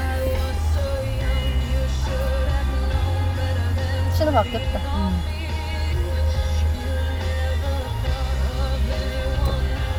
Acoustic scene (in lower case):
car